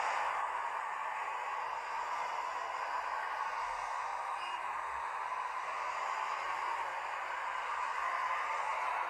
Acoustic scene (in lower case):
street